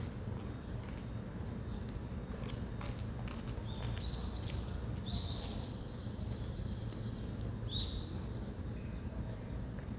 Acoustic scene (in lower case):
residential area